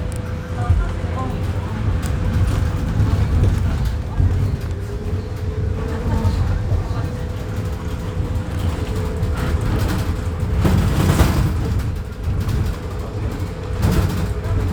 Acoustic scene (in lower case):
bus